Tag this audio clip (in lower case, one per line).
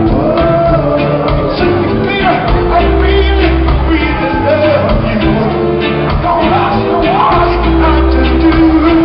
crowd
music
ska
musical instrument
shout
singing